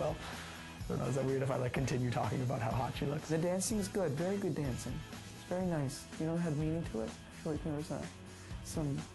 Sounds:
speech, music

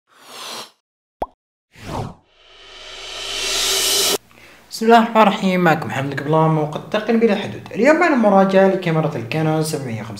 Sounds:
speech, plop

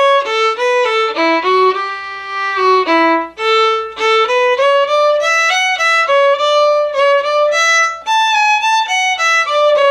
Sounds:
musical instrument, playing violin, fiddle, music

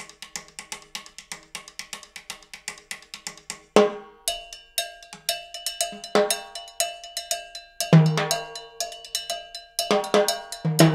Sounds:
playing timbales

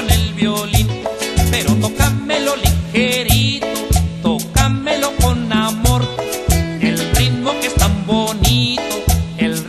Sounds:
music, musical instrument

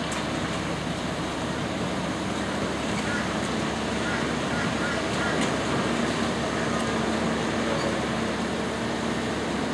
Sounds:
accelerating, vehicle

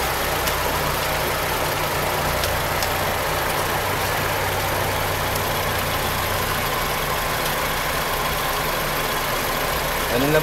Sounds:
sound effect

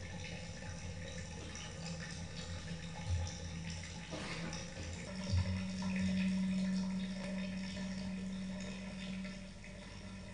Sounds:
inside a small room

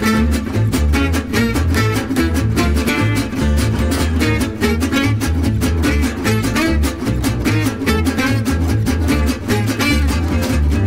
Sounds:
music

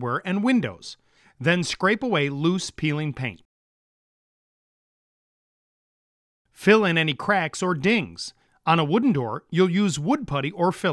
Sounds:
speech

